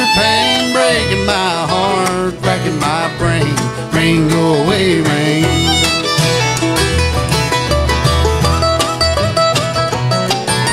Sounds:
Music, Plucked string instrument, Singing, Guitar

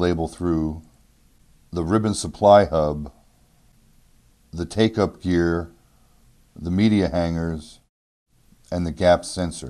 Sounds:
Speech

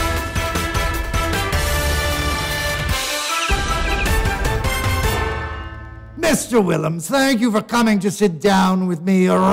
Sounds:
Speech, Music

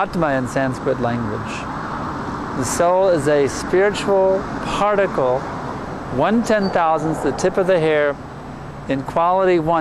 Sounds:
Speech

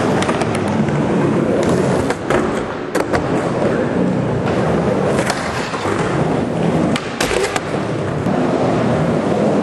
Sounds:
inside a large room or hall

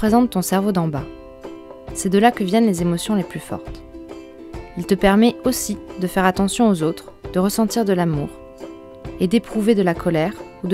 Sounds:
Speech, Music

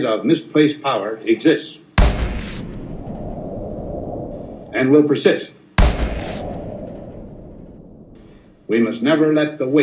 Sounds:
Speech

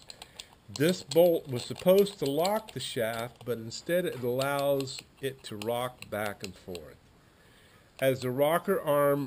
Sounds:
Speech

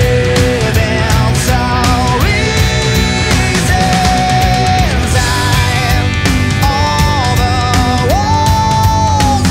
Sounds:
Music

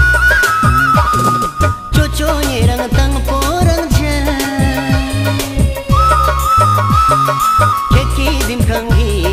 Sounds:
Music

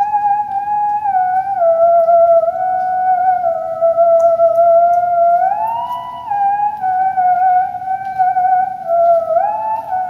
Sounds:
Theremin

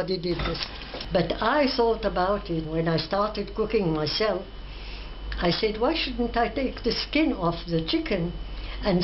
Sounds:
Speech

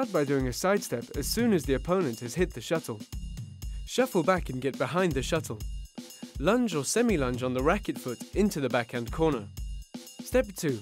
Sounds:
Music, Speech

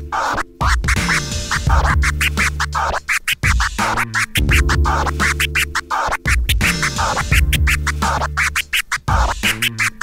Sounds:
Scratching (performance technique), Music

